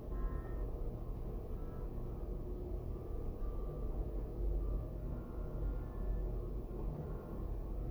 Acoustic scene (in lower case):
elevator